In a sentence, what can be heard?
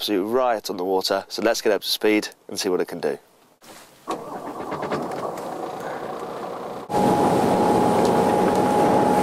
A man speaks then switches on a motor boat, boat is riding on the water